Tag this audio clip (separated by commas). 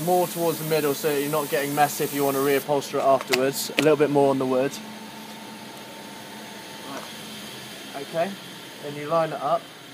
Speech